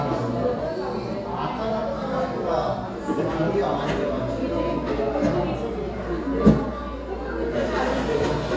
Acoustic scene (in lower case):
cafe